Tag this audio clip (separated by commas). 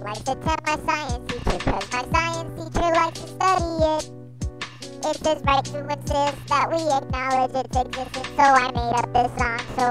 Music